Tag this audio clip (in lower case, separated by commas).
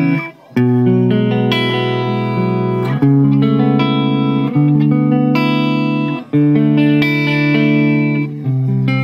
tender music, music